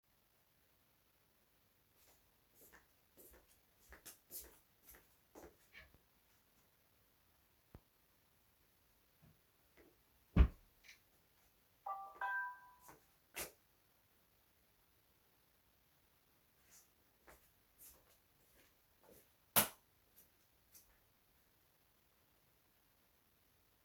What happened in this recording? I came back to bedroom from the living room to get my misplaced cap. I was holding phone in hands, opened the wardrobe, wore the cap, closed the wardrobe. When I was just about to leave I got a message, so I stopped, checked out what I got and left the room, switching the lights off.